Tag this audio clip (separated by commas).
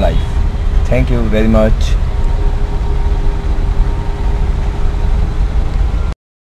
Motor vehicle (road), Vehicle, Speech, Car